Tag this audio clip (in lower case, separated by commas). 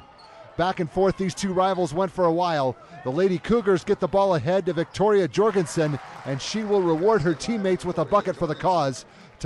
speech